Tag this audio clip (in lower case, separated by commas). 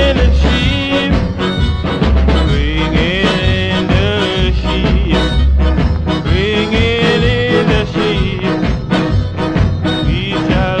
music